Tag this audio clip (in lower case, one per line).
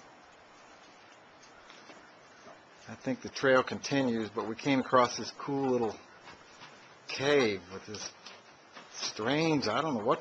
speech